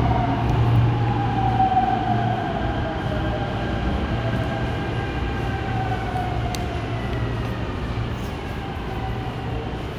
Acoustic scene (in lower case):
subway station